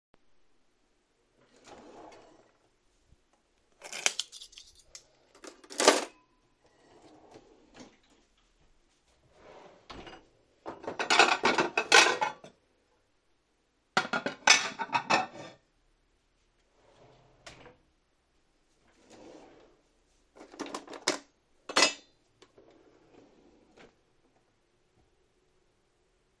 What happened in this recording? I opened the cutlery drawer, put some forks inside and closed it. Then I opened the cupboard with the dishes, took out 3 plates and set them on the worktop. I closed the cupboard. I opened another drawer and put a metal spatula inside, before I closed it too.